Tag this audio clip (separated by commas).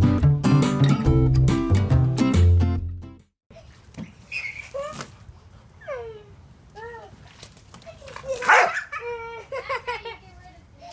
Speech, Music, Domestic animals, Bow-wow, Yip, Animal